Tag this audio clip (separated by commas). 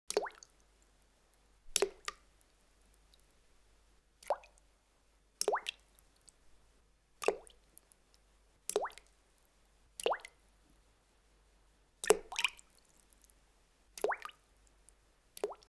Liquid, splatter